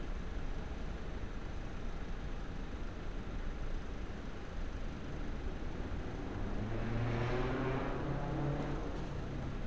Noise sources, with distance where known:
medium-sounding engine, far

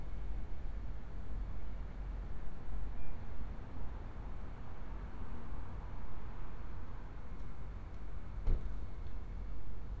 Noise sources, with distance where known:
medium-sounding engine, far

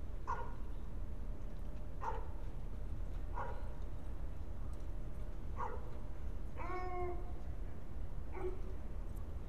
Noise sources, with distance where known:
dog barking or whining, far

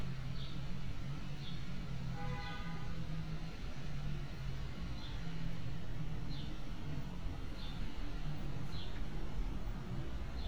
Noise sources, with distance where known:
car horn

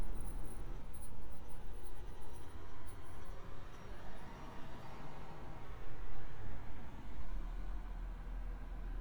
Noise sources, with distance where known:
background noise

